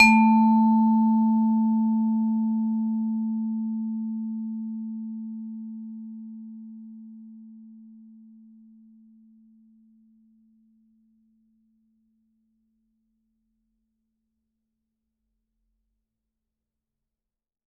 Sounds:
music, mallet percussion, musical instrument, percussion

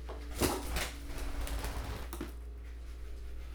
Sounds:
wild animals, animal, bird

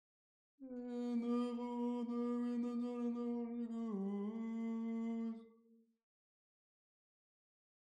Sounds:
human voice, singing

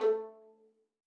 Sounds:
bowed string instrument, music, musical instrument

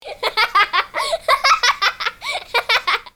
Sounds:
laughter, human voice

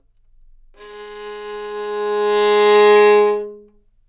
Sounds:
bowed string instrument, musical instrument, music

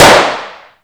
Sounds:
gunfire, explosion

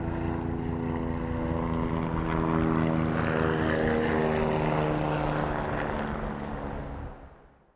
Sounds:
vehicle, aircraft

